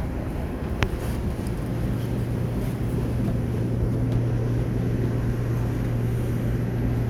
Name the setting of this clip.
subway train